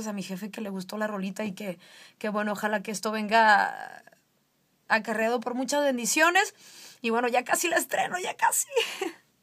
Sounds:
speech

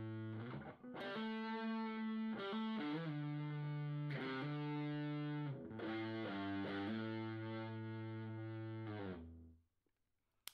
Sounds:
music

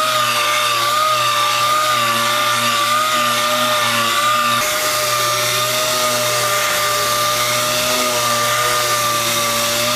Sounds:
rub

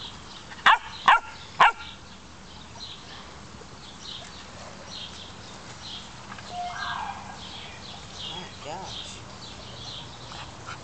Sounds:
speech

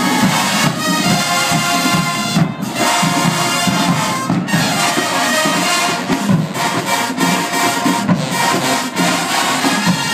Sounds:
music

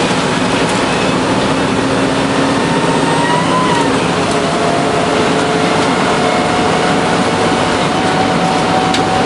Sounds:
vehicle, bus, driving buses

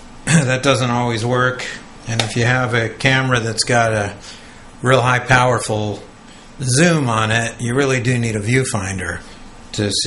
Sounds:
speech

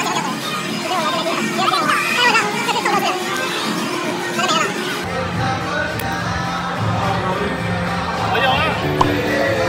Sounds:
slot machine

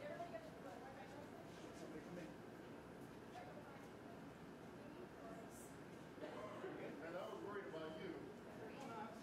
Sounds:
silence, speech

